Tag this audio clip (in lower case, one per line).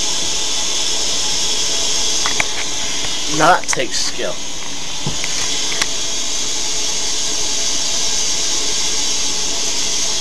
speech